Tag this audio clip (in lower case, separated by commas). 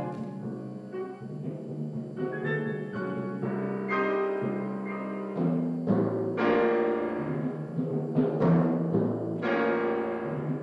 timpani, music